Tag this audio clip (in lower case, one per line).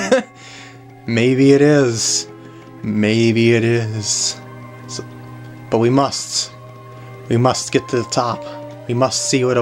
speech